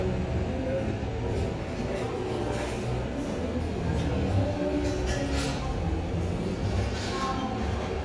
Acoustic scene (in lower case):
cafe